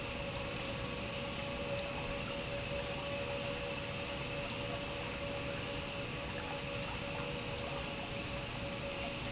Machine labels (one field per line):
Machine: pump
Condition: normal